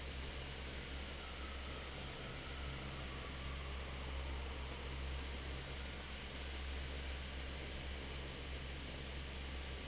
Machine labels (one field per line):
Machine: fan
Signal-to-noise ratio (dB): 6 dB